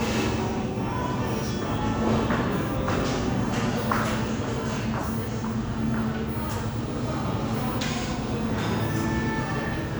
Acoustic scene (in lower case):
crowded indoor space